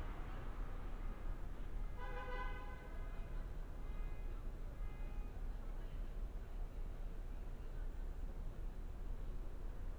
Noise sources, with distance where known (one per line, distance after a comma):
car horn, near